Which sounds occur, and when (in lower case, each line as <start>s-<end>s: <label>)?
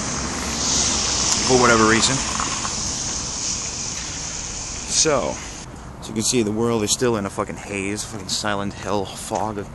0.0s-5.6s: spray
0.0s-9.7s: mechanisms
1.4s-2.2s: man speaking
3.8s-4.6s: breathing
4.7s-4.8s: tick
4.9s-5.3s: man speaking
5.4s-5.6s: breathing
6.0s-9.7s: man speaking
6.4s-6.5s: tick